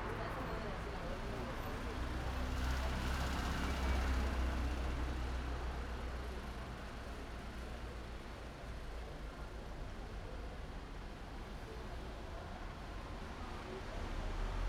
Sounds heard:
car wheels rolling, people talking, car, car engine accelerating

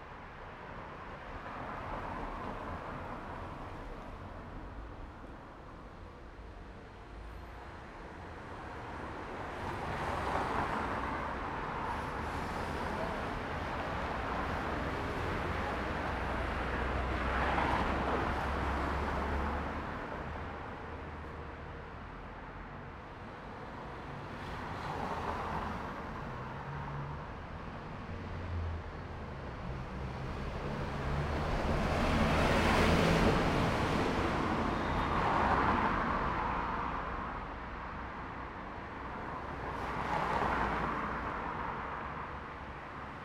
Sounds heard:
bus, car, car wheels rolling, bus engine accelerating, car engine accelerating, bus wheels rolling

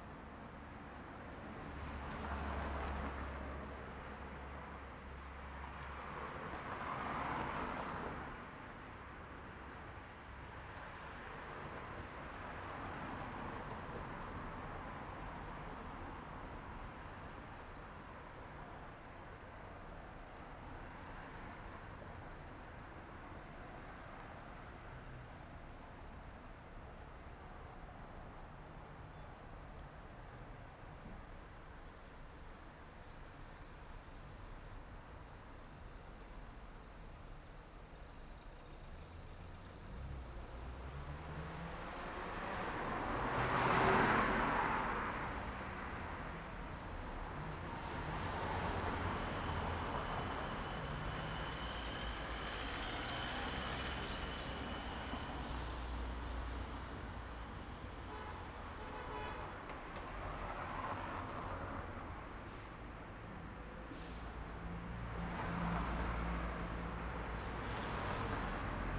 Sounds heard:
car engine accelerating, bus engine accelerating, car wheels rolling, bus, bus compressor, car engine idling, unclassified sound, bus brakes, car, bus engine idling

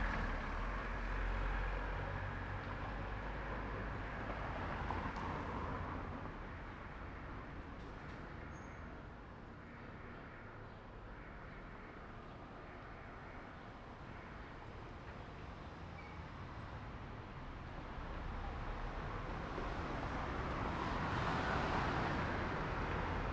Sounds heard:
car, car engine accelerating, car wheels rolling, unclassified sound

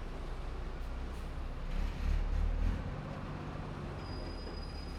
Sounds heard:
bus compressor, bus brakes, bus, bus engine idling, bus engine accelerating

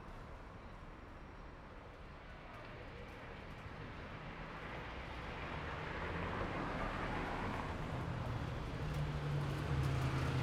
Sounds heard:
motorcycle engine accelerating, car wheels rolling, people talking, motorcycle, car

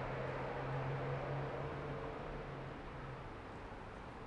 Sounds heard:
car, bus, car wheels rolling, bus engine accelerating

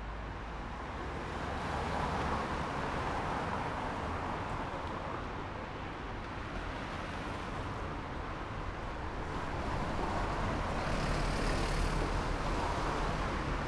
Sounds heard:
car, bus engine accelerating, bus, car wheels rolling, bus wheels rolling

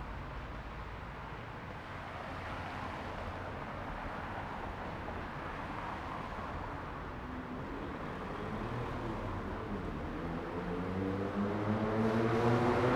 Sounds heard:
car wheels rolling, car, car engine accelerating

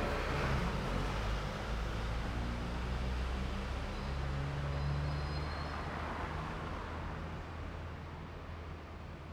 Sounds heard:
car wheels rolling, bus engine accelerating, car, bus brakes, bus

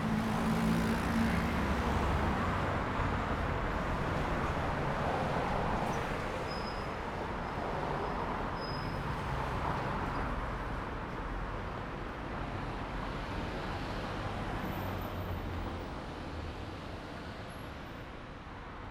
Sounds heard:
motorcycle engine accelerating, car, bus, car wheels rolling, bus engine accelerating, car engine accelerating, bus brakes, bus compressor, motorcycle, bus wheels rolling

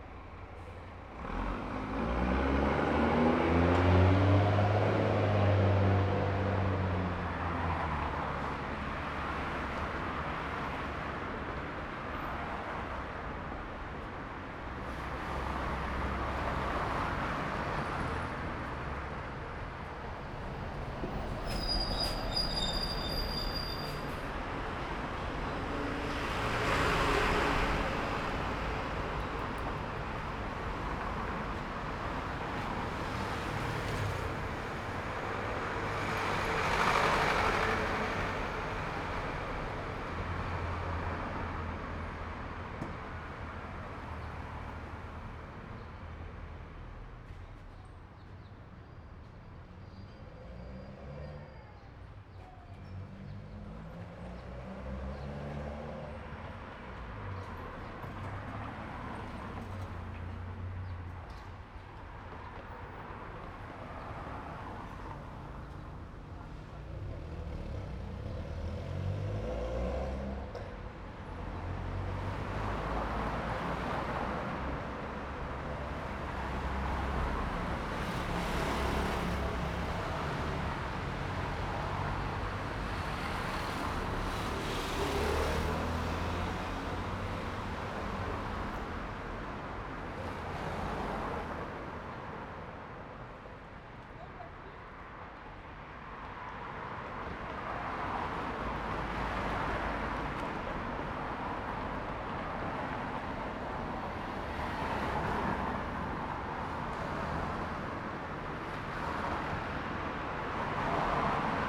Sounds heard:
bus engine accelerating, motorcycle, bus wheels rolling, truck, bus, car wheels rolling, bus compressor, motorcycle engine accelerating, car engine accelerating, bus brakes, bus engine idling, car, people talking, truck engine accelerating

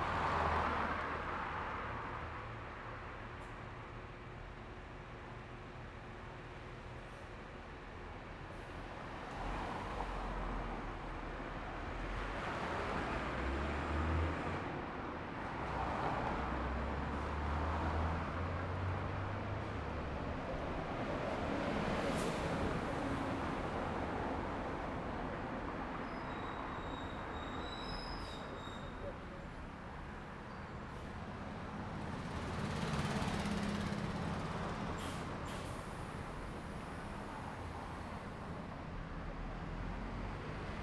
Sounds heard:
car wheels rolling, car, bus compressor, bus engine accelerating, bus brakes, bus, car engine idling, bus engine idling

